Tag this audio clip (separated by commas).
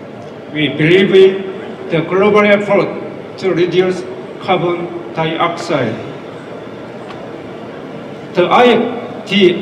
Speech